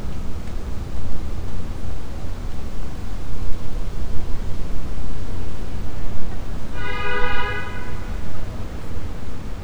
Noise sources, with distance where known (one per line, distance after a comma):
car horn, near